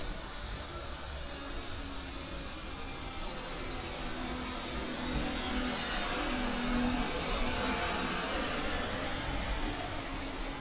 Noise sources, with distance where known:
engine of unclear size

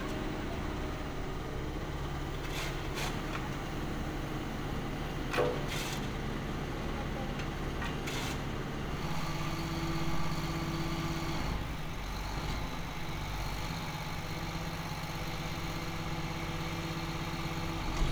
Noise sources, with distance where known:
large-sounding engine, near

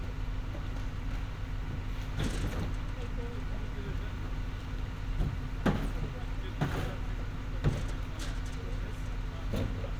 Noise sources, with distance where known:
unidentified impact machinery

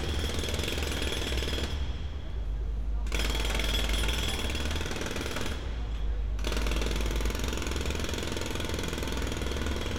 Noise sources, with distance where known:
jackhammer

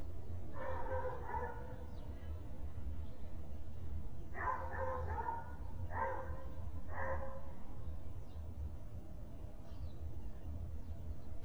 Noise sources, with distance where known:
dog barking or whining, near

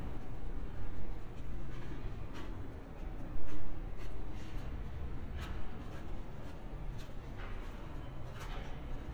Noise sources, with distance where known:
background noise

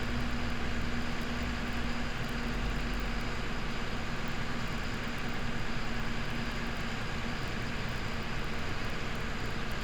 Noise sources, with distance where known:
engine of unclear size

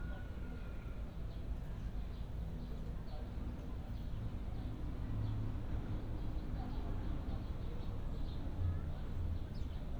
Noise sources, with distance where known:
person or small group talking, far

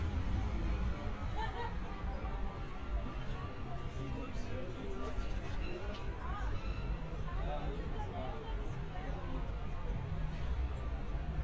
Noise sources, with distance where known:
person or small group talking

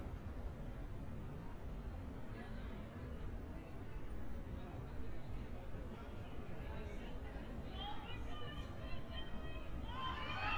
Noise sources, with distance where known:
person or small group talking, far; person or small group shouting

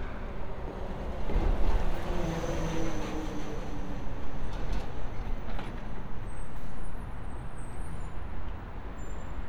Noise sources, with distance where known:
engine of unclear size; non-machinery impact, near

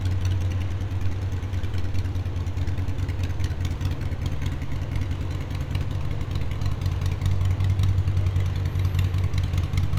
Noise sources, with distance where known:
engine of unclear size, near

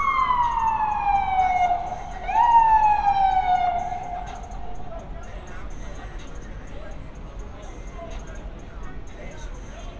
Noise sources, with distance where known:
siren, near; music from an unclear source, near

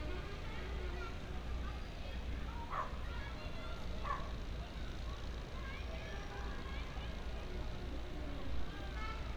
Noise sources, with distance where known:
music from an unclear source, far; unidentified human voice, far; dog barking or whining

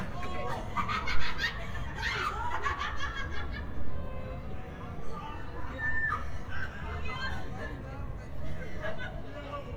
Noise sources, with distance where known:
person or small group talking, near

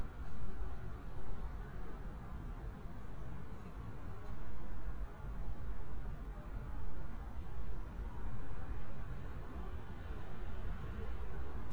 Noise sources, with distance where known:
background noise

